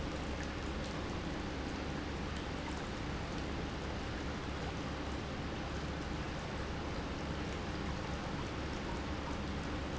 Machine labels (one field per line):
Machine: pump